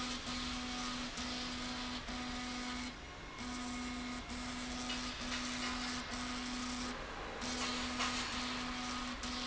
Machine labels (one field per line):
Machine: slide rail